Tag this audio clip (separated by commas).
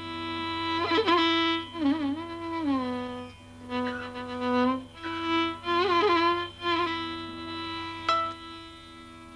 Musical instrument, Music, Violin